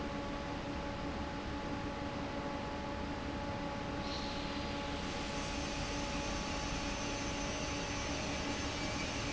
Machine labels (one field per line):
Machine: fan